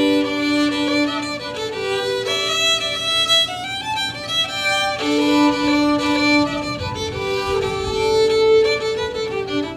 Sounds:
musical instrument
music
violin

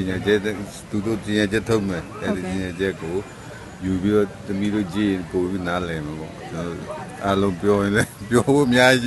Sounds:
speech
conversation
female speech
man speaking

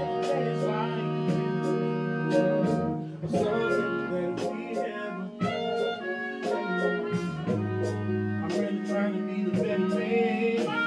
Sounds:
steel guitar
music

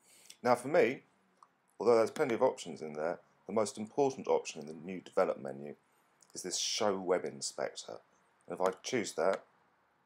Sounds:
speech

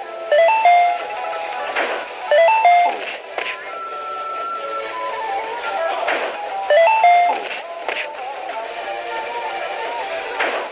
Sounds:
music

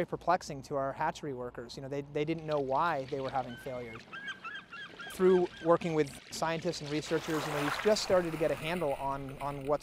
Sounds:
speech

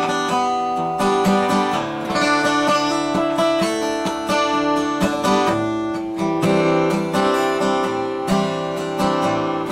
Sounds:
guitar
strum
musical instrument
plucked string instrument
music

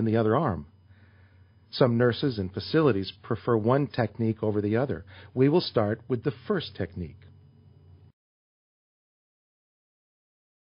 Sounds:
speech
inside a small room

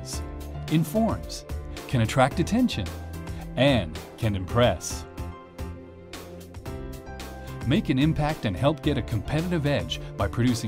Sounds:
music
speech

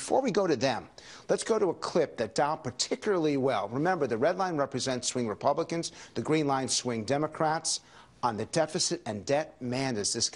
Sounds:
man speaking
speech

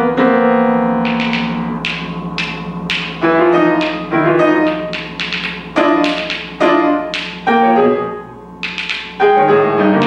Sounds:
music
jazz
timpani
drum
percussion
musical instrument

